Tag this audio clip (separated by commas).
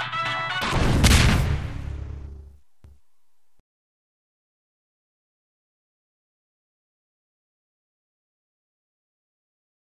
Music